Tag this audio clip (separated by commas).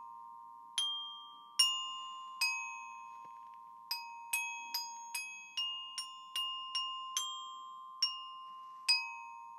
playing glockenspiel